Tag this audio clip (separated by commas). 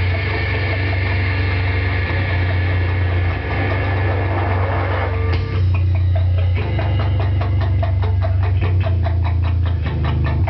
inside a small room, Music